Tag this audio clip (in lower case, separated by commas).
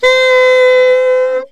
wind instrument, musical instrument, music